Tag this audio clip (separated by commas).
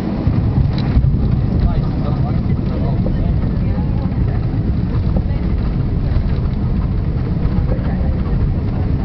Aircraft, Flap, Speech, Fixed-wing aircraft